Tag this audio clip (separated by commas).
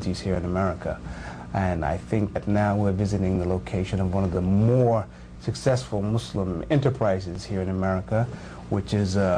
Speech